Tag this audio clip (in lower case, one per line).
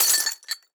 shatter
glass